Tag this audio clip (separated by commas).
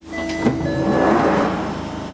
metro, Rail transport, Sliding door, Domestic sounds, Door, Vehicle